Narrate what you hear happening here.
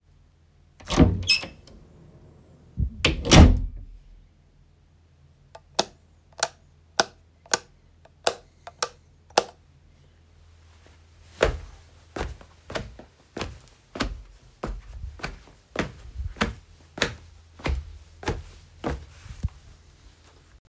I opened the doors, then turn on the light and walked towards the table.